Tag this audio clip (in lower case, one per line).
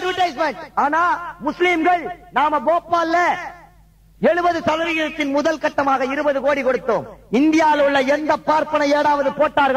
male speech
monologue
speech